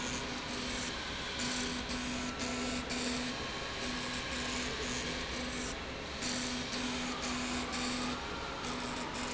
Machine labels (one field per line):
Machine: slide rail